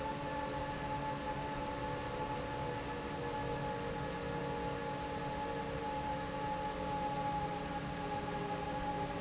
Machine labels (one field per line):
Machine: fan